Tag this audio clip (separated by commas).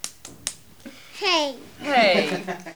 Laughter, Hands, Human voice, Speech, kid speaking, Clapping, Female speech, chortle